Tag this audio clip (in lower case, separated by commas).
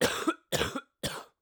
cough, respiratory sounds